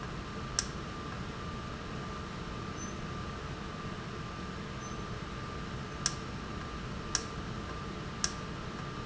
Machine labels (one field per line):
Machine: valve